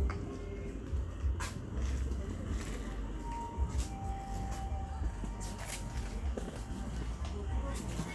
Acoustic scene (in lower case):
park